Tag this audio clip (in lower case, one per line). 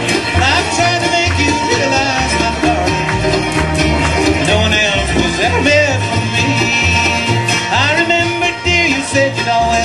bluegrass
guitar
country
music
musical instrument
plucked string instrument